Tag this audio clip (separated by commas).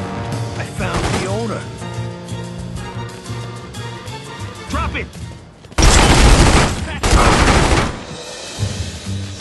Music, Speech